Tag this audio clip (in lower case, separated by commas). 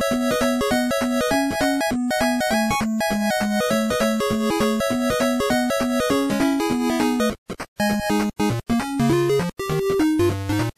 theme music, music